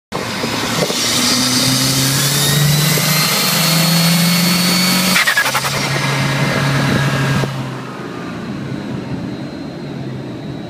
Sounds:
accelerating, car, engine, vehicle

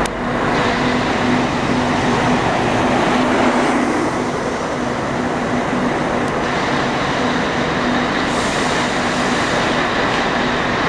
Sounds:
vehicle, bus

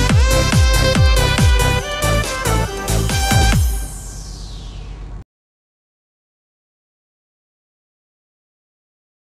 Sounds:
music

